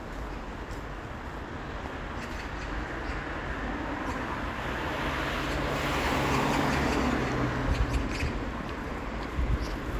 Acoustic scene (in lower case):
street